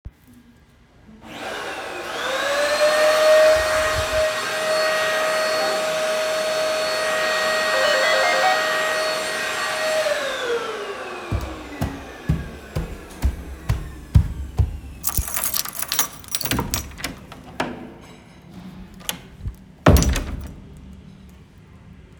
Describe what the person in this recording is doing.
I used the vacuum cleaner in the living room. The bell rang. I turned off the vacuum cleaner and walked towards the apartment door. I used the keys to unlock. opened and closed the door.